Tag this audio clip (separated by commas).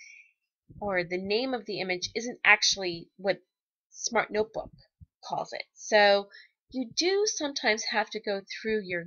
Narration